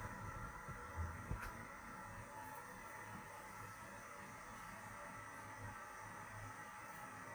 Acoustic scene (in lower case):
restroom